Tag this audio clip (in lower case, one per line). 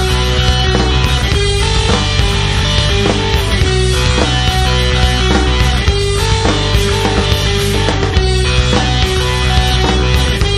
music